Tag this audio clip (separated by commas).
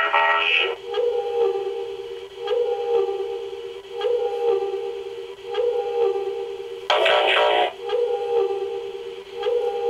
Sound effect, inside a small room